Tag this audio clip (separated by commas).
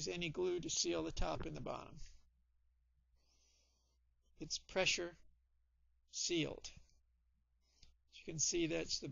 Speech